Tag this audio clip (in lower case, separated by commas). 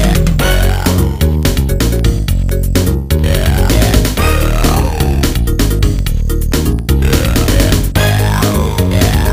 dance music, disco, music